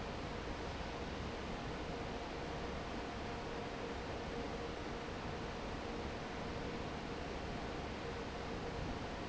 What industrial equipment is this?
fan